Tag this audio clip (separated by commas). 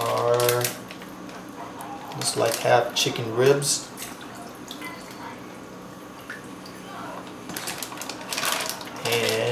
Speech